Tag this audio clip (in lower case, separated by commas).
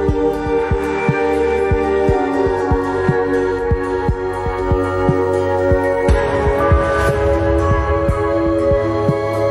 music